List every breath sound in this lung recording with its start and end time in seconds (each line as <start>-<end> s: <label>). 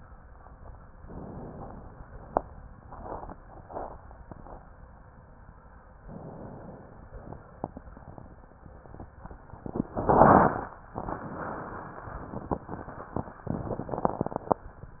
1.02-1.88 s: inhalation
6.05-7.12 s: inhalation